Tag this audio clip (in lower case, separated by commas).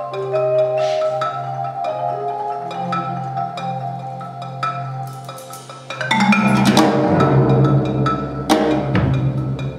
percussion, tubular bells, music